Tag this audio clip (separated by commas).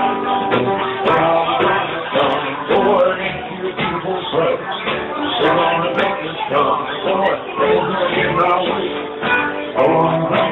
Music, Speech